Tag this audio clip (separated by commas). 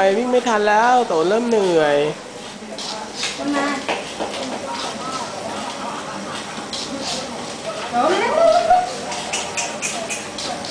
Speech